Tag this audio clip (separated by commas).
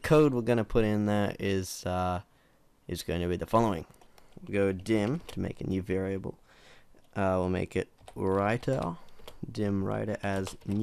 Speech